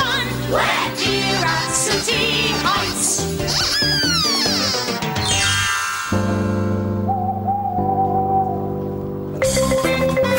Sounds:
Music

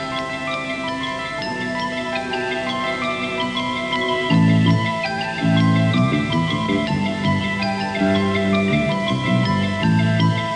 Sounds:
Music

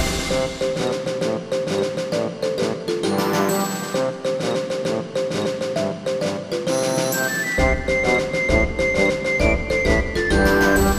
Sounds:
Music

